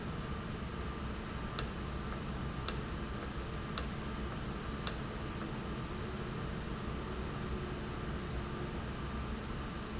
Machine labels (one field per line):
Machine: valve